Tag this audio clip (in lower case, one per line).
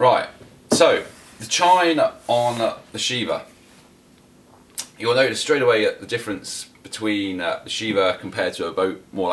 speech